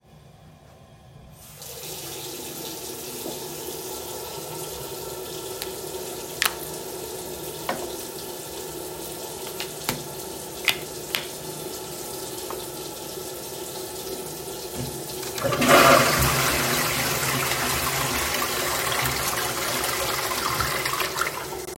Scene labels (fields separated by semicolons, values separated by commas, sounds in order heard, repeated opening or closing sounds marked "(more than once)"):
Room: bathroom; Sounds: running water, toilet flushing